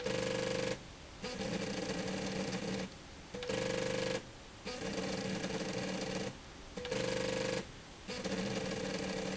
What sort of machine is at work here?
slide rail